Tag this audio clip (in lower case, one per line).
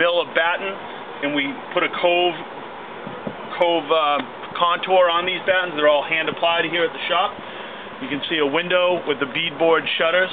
speech